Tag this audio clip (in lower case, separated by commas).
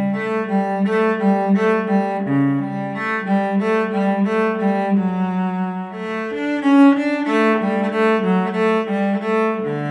playing cello